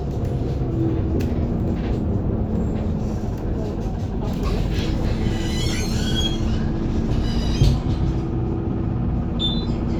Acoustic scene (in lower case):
bus